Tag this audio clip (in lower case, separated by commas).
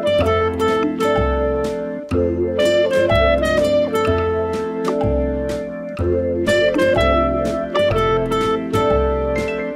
slide guitar, music